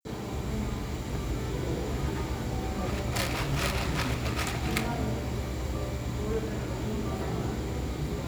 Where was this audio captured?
in a cafe